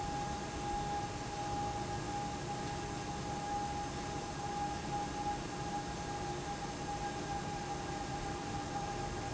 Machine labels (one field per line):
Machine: fan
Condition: abnormal